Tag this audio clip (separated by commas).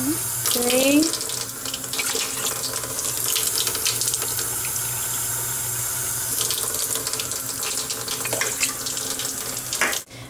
Speech, inside a small room, Water tap